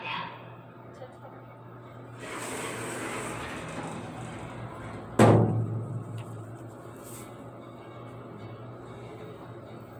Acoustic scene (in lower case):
elevator